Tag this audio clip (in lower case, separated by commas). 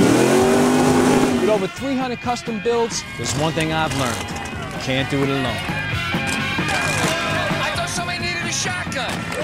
music, speech